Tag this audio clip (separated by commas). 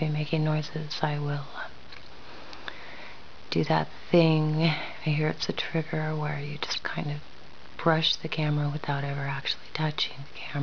Speech